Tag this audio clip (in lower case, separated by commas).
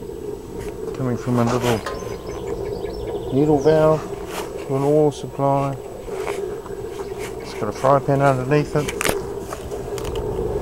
speech